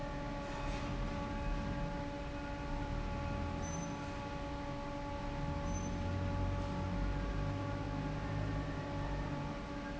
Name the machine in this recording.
fan